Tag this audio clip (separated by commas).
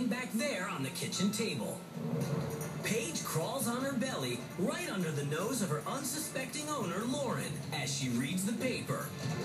Speech, Music